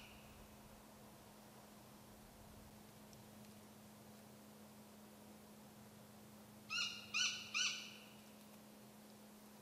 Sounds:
Owl

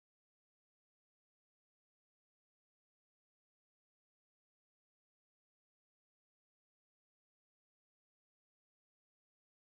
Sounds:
extending ladders

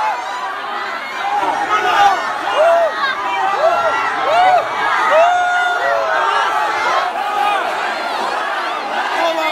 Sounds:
people crowd, Crowd

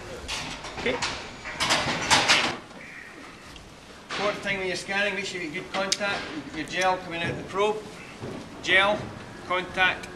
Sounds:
Speech

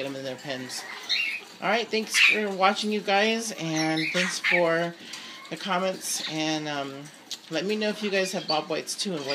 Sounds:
Speech, Bird, Domestic animals

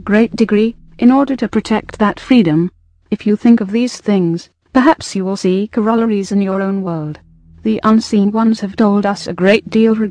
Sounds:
Speech

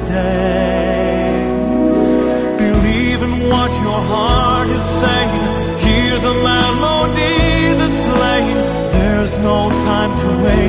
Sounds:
Music

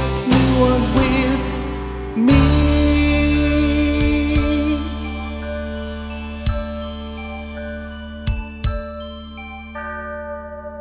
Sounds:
inside a large room or hall, Music

